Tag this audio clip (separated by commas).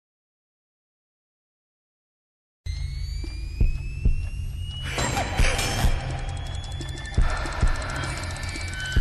Music, Silence